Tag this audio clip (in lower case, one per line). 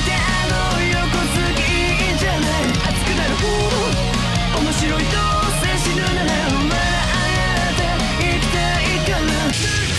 jazz
music